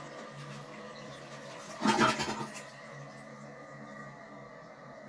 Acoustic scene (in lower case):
restroom